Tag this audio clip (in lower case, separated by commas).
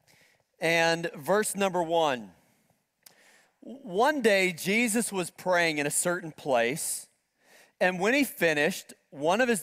speech